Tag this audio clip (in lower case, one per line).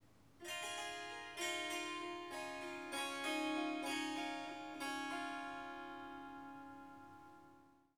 harp
musical instrument
music